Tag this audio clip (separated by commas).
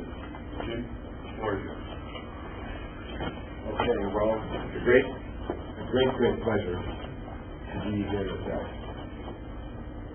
Speech